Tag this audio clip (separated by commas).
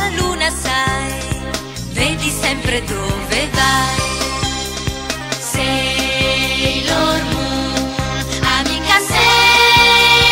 Music, Theme music